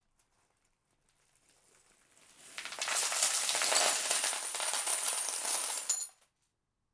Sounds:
coin (dropping)
home sounds

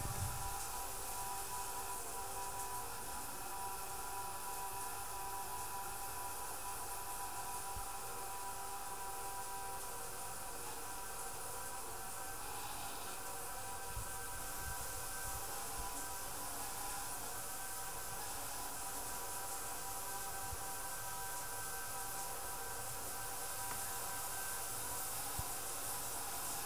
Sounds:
home sounds
bathtub (filling or washing)

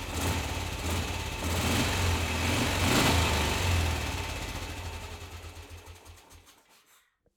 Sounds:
motorcycle
motor vehicle (road)
engine
vehicle

